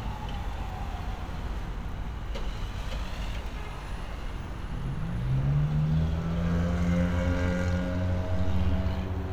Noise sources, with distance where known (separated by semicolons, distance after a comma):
medium-sounding engine; large-sounding engine; car horn; siren